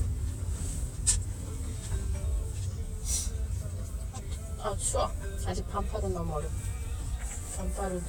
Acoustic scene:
car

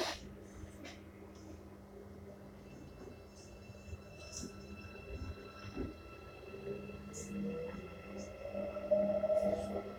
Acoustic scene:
subway train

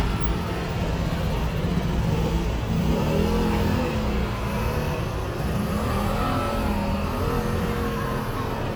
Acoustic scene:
street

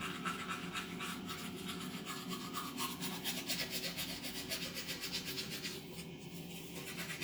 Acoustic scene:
restroom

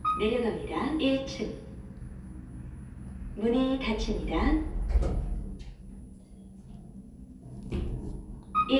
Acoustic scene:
elevator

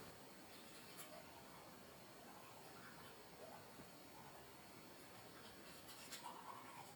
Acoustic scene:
restroom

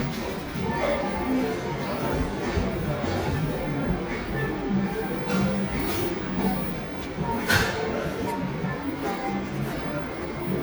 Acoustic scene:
cafe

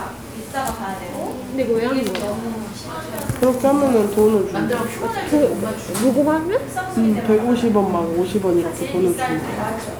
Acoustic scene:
crowded indoor space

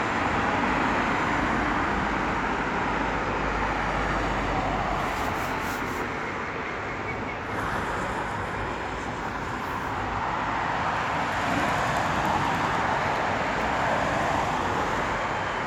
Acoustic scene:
street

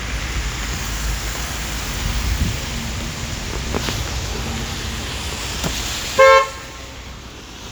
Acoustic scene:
street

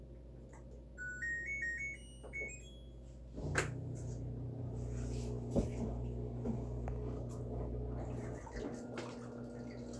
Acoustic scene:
kitchen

